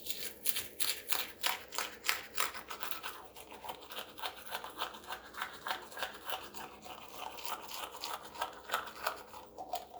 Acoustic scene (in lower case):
restroom